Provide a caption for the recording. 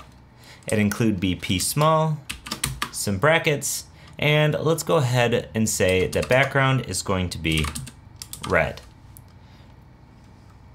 A man is talking with typing noises